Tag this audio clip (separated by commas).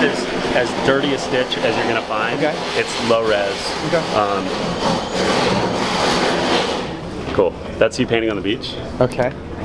Speech